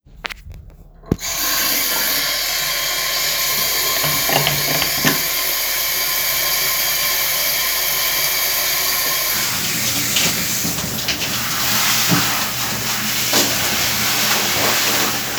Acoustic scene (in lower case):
restroom